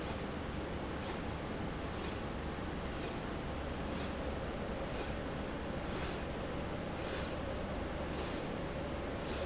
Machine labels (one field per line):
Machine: slide rail